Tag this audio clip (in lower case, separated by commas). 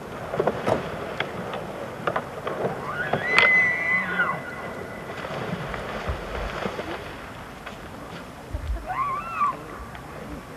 elk bugling